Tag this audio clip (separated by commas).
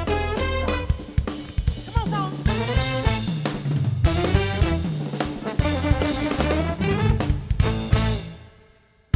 Speech, Music